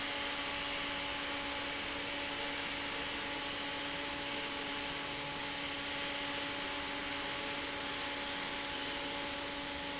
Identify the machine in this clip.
fan